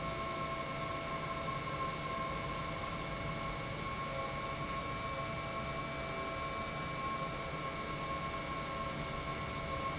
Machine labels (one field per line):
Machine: pump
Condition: normal